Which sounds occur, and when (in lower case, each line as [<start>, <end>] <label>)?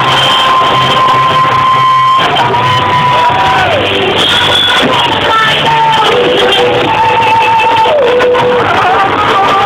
[0.00, 0.70] whistling
[0.00, 3.66] female singing
[0.00, 9.65] crowd
[0.00, 9.65] music
[3.04, 3.61] shout
[5.20, 5.92] female singing
[6.89, 9.65] female singing